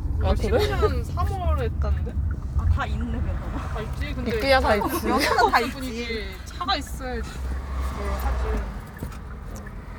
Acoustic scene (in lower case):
car